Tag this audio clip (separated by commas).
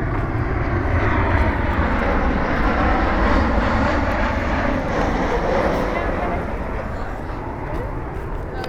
Vehicle, Aircraft, Fixed-wing aircraft